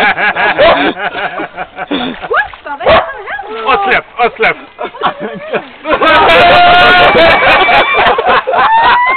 A group of people laughing